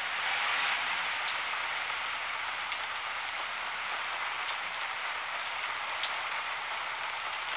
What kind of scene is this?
street